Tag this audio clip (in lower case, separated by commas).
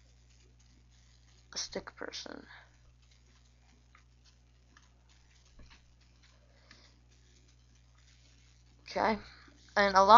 speech